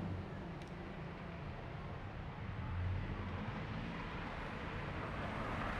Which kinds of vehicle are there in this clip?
car